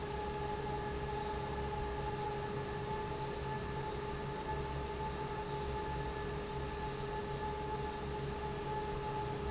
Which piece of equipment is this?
fan